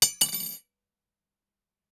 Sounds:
silverware, Domestic sounds

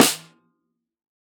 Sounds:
Percussion, Snare drum, Musical instrument, Drum, Music

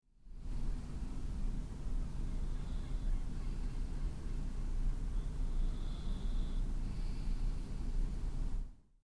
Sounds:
Animal, Respiratory sounds, Bird, Breathing, Wild animals

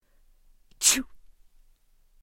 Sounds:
Respiratory sounds, Sneeze

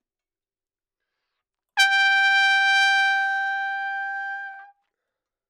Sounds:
Musical instrument, Brass instrument, Music, Trumpet

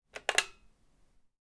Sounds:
Telephone, Alarm

